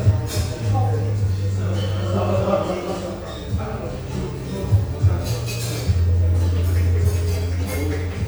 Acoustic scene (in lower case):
cafe